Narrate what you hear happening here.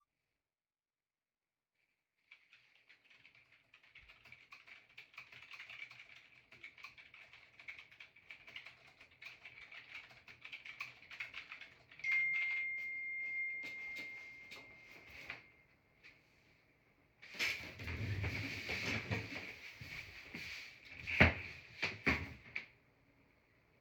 During some writing on the computer, my phone rang with an alarm. I pulled my phone out of my pocket and saw an appointment. I jumped up and opened my wardrobe to change my clothes.